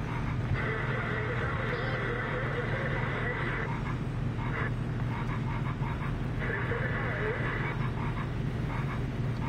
An engine works while some frogs croak